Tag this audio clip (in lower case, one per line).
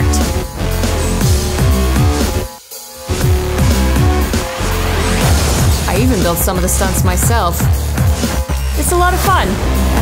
music
speech